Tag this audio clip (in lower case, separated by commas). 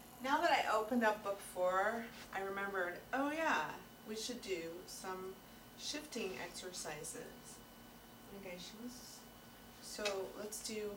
speech